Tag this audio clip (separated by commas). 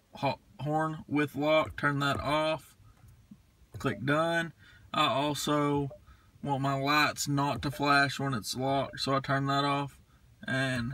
Speech